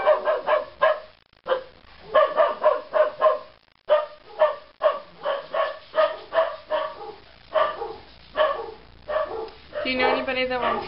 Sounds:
speech

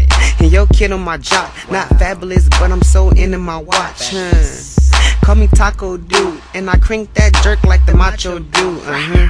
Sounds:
music

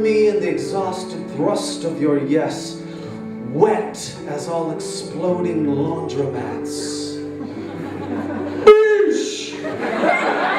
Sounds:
speech, music, inside a large room or hall

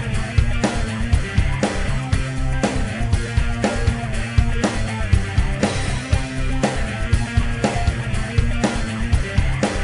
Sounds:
music

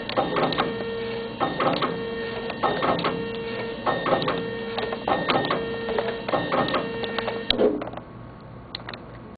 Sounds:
printer

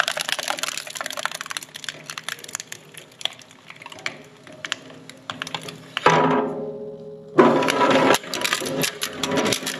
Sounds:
plastic bottle crushing

